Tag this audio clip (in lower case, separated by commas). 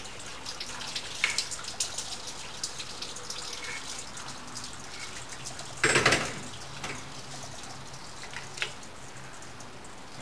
water, faucet, sink (filling or washing)